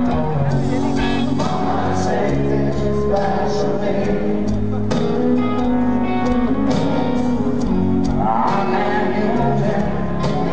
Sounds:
music
speech

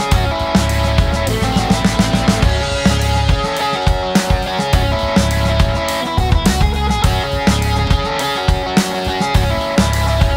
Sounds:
music

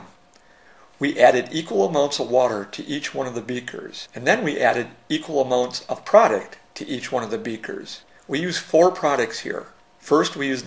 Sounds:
speech

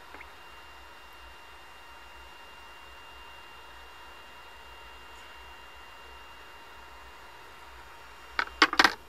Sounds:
inside a small room

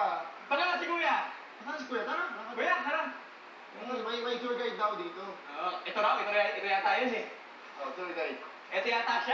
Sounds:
speech

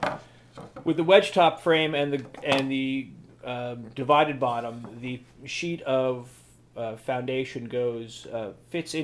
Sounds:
speech

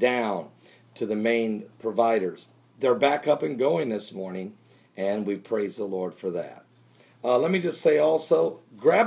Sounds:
speech

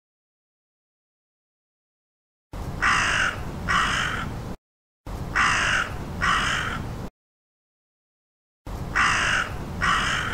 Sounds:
crow cawing

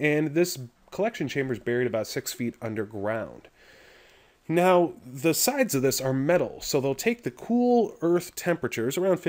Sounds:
speech

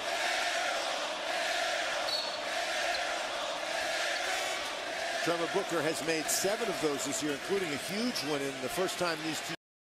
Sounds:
speech

